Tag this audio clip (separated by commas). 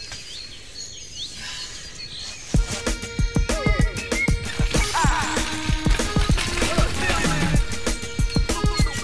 Bird, tweet, Bird vocalization